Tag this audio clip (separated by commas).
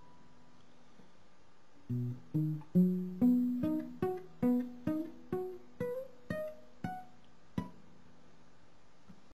Pizzicato